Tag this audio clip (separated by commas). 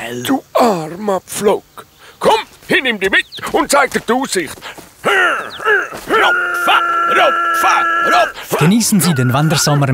Animal, Speech